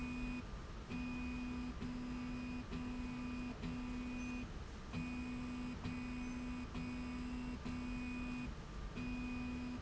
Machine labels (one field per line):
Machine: slide rail